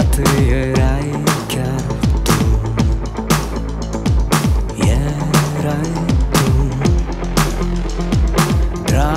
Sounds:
Music, Soundtrack music

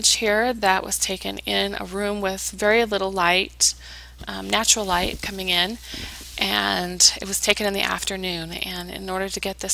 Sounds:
Speech

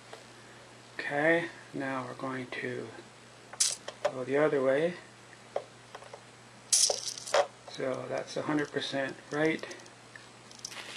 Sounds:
Speech

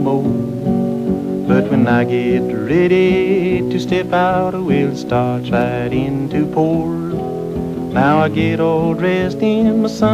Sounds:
Music

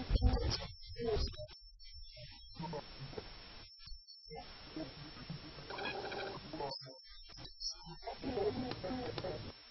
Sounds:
Speech

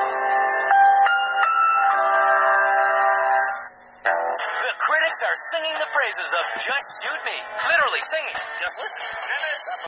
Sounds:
Music, Speech, Television

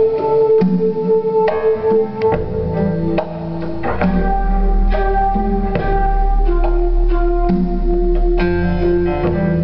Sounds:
Music

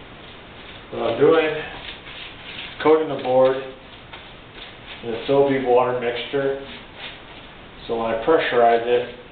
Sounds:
Speech

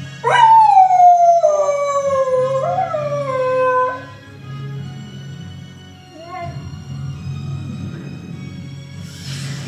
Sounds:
dog howling

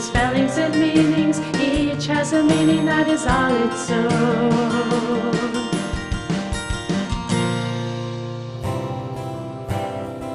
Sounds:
Music for children

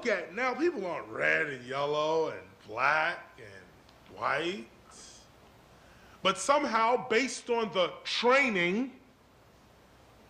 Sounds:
Speech, man speaking, monologue

